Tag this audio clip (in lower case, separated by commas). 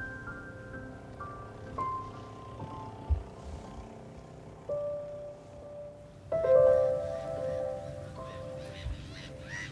outside, rural or natural, music